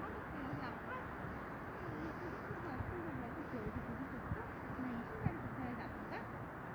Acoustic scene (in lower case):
residential area